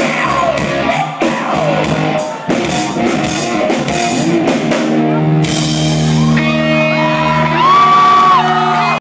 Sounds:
music, male singing

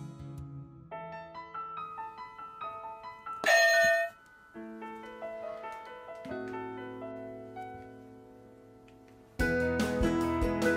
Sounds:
music

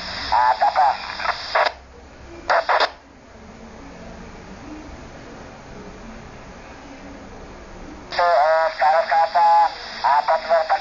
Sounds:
radio, speech

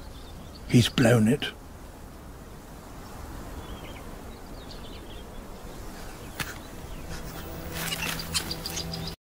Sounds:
speech

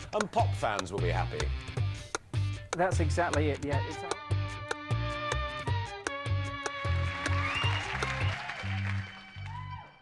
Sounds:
music, speech, background music

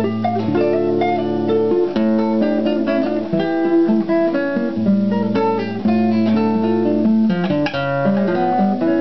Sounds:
acoustic guitar, musical instrument, plucked string instrument, strum, music, guitar

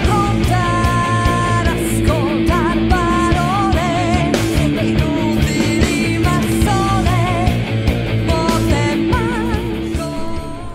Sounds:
music, funk

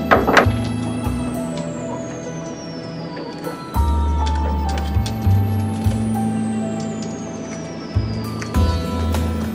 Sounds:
music

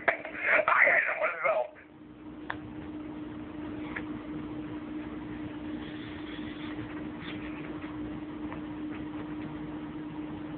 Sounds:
speech, inside a small room

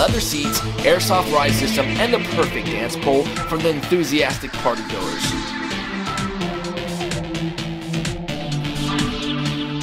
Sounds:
speech, music

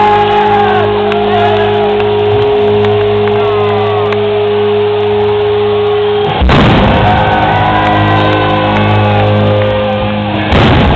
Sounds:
musical instrument, guitar, strum, music

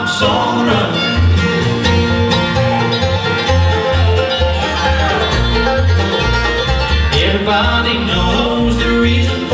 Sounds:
music

